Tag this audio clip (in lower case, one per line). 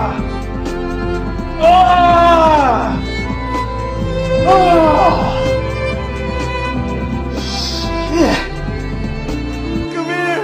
speech
musical instrument
fiddle
music